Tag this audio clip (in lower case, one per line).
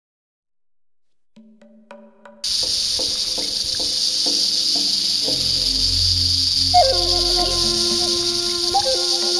music
animal
outside, rural or natural